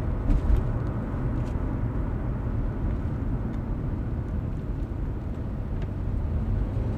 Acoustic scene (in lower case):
car